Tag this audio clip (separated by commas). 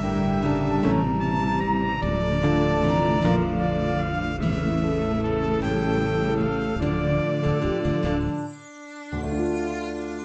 Sad music, Music